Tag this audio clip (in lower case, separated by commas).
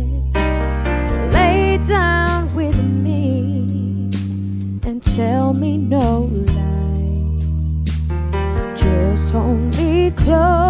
music, female singing